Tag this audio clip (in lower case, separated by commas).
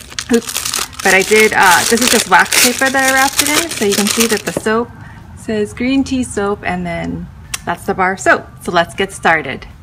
speech